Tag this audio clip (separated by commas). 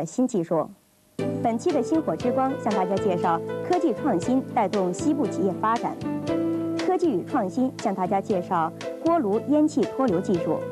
Music, Speech